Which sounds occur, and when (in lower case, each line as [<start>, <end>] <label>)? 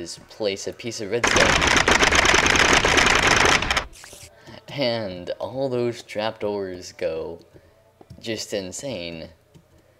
[0.00, 1.18] male speech
[0.00, 9.95] mechanisms
[0.00, 9.95] video game sound
[1.23, 4.25] sound effect
[4.04, 4.65] human voice
[4.29, 4.60] breathing
[4.39, 4.62] generic impact sounds
[4.64, 7.41] male speech
[5.94, 6.08] tap
[7.34, 7.45] clicking
[7.35, 7.60] tap
[7.45, 7.77] breathing
[7.54, 8.21] human voice
[7.93, 8.19] tap
[8.18, 9.40] male speech
[8.73, 8.86] tap
[9.51, 9.84] tap